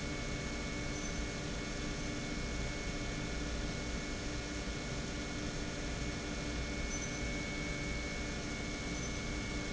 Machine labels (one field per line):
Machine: pump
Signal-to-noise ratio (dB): -6 dB